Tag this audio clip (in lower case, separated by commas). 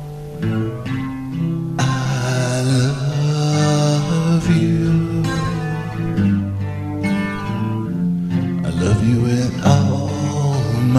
music, guitar, strum, acoustic guitar, plucked string instrument, musical instrument